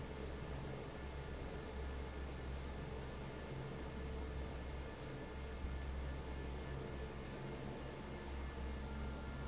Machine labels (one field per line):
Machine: fan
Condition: normal